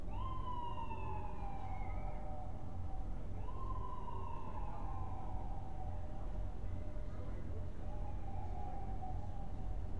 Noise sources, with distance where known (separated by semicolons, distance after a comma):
background noise